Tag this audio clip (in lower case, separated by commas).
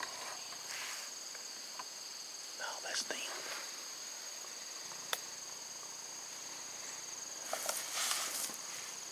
coyote howling